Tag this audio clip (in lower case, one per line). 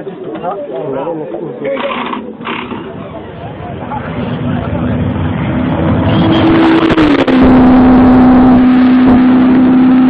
race car
car
car passing by
speech
vehicle